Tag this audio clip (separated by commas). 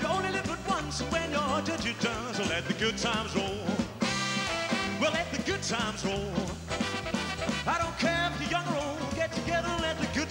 Singing, Song, Blues, Music